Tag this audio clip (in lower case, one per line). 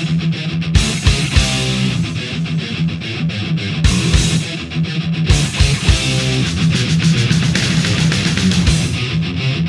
music